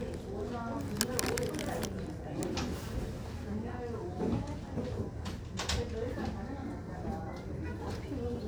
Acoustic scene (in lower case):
crowded indoor space